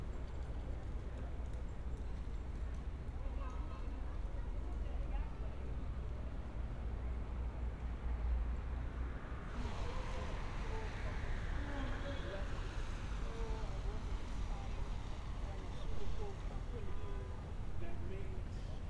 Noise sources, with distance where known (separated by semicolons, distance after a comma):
person or small group talking